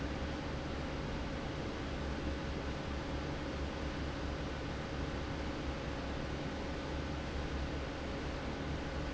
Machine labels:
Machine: fan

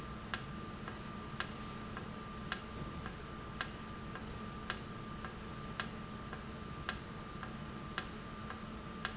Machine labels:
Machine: valve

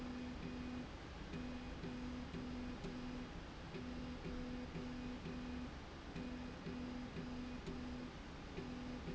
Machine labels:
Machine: slide rail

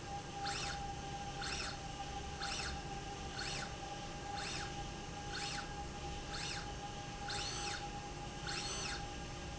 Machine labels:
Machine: slide rail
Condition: normal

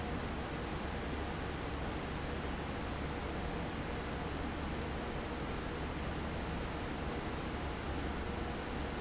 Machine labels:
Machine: fan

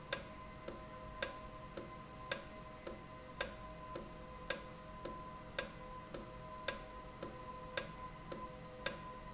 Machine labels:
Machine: valve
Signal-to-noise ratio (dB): 6 dB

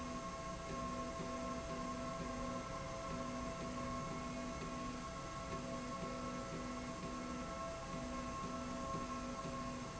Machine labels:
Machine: slide rail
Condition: normal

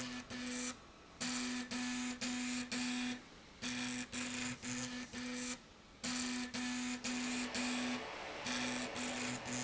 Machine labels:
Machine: slide rail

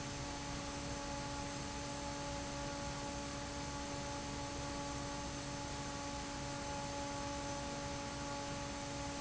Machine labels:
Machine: fan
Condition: normal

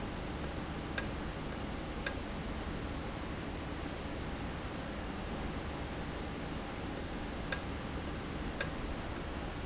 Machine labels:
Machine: valve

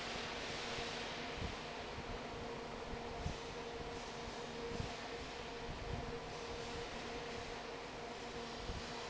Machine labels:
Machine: fan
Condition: normal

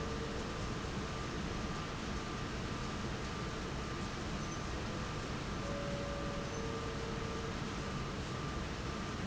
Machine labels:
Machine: fan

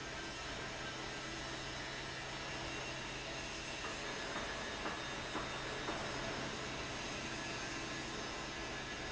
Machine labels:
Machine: fan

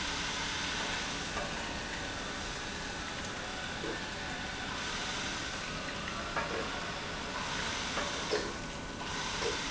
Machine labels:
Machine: pump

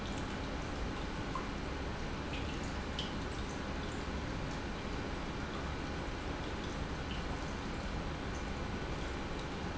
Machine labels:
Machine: pump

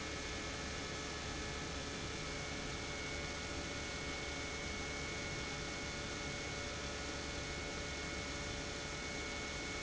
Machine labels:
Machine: pump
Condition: normal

